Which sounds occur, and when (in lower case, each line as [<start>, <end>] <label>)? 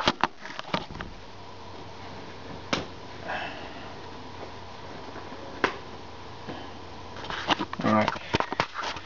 [0.00, 0.10] generic impact sounds
[0.00, 9.05] mechanisms
[0.18, 0.28] generic impact sounds
[0.35, 1.04] generic impact sounds
[2.67, 2.80] generic impact sounds
[3.22, 3.61] breathing
[5.60, 5.72] generic impact sounds
[6.45, 6.63] generic impact sounds
[7.08, 7.70] surface contact
[7.74, 8.16] male speech
[7.79, 9.05] surface contact